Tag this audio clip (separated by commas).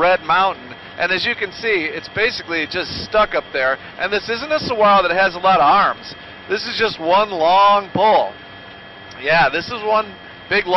Speech